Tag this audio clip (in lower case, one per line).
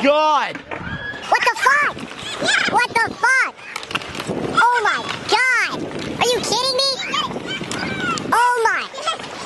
skateboard
speech